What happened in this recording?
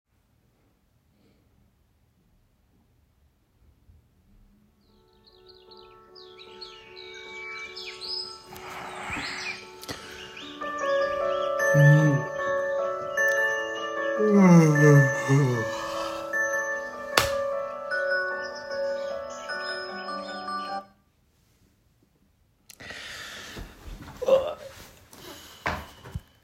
I was laying in bed, asleep. Then, an alarm on my phone rang, signaling that it is waking up time. I had switched the light on and then turned the alarm off. After that I got up.